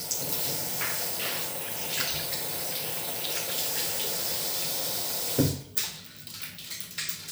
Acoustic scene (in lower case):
restroom